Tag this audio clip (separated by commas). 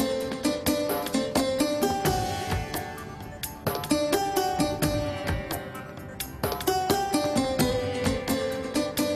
Music